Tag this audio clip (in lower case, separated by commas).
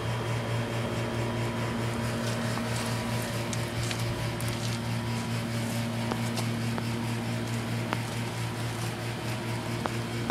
air conditioning